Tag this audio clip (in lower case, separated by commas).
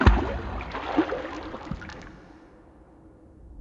liquid, splatter